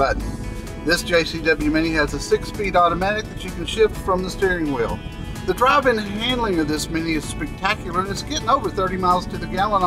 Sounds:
vehicle, speech, music

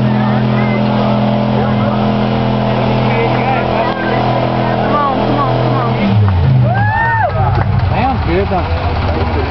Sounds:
truck, speech, vehicle

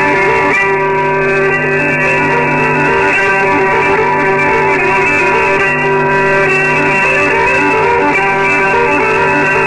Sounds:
fiddle, musical instrument, music

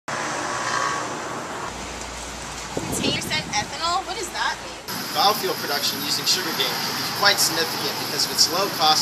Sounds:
speech, outside, urban or man-made

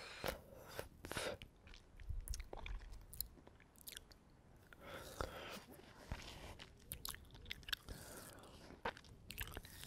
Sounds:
people slurping

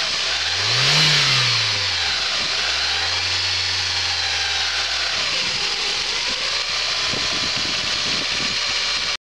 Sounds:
idling

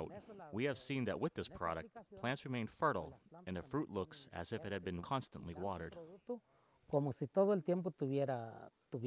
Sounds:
speech

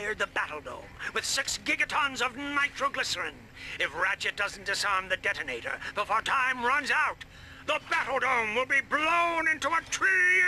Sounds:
speech

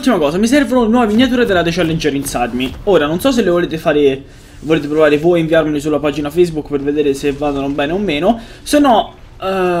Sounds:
speech

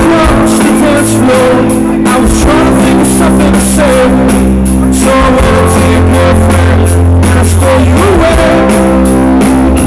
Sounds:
tender music, music

